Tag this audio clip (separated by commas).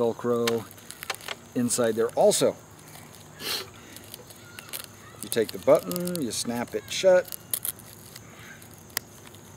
outside, rural or natural, Speech